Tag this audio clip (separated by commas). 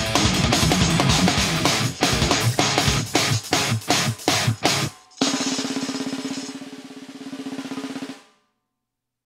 Tambourine, Hi-hat, Music